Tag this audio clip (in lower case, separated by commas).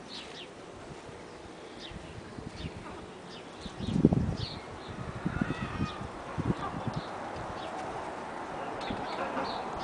rooster, fowl, cluck